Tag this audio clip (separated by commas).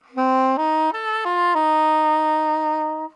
Musical instrument, Music, woodwind instrument